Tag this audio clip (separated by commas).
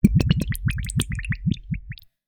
Fill (with liquid), Liquid, Water